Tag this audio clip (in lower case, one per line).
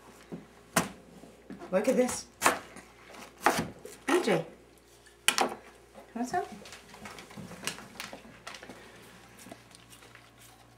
speech